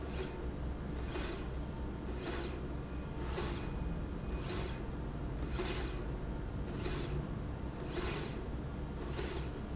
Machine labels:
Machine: slide rail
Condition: normal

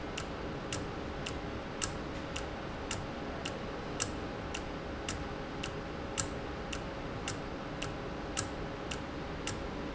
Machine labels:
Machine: valve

